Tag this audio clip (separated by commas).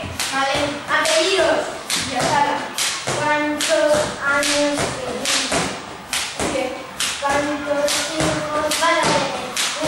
rope skipping